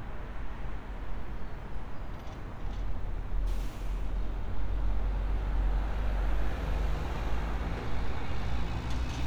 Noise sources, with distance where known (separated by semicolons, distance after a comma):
engine of unclear size